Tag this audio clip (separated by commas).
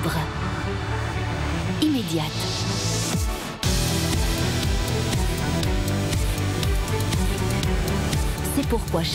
Music, Speech